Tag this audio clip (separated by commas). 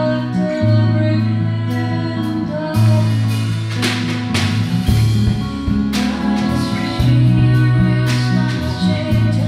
Music